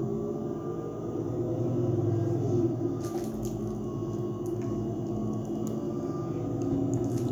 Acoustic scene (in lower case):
bus